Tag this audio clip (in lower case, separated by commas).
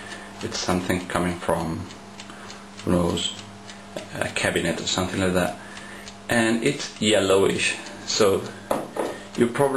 tick, speech